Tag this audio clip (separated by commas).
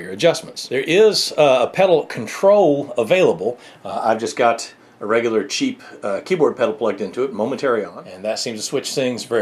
Speech